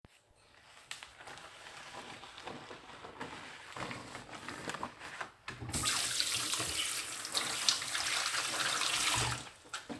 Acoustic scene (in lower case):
kitchen